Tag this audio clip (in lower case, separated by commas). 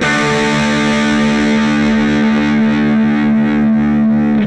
electric guitar, guitar, music, plucked string instrument, musical instrument